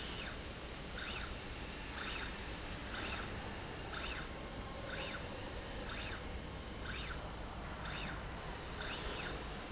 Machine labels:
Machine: slide rail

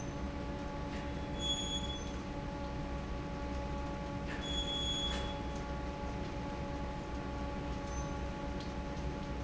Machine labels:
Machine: fan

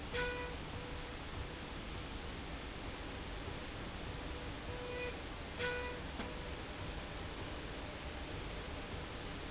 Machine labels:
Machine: slide rail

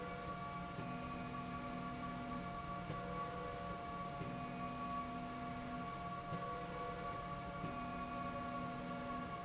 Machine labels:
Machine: slide rail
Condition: normal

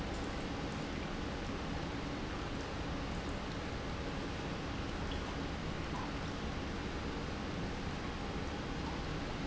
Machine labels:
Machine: pump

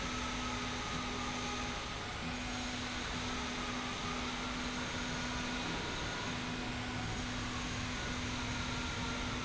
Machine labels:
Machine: slide rail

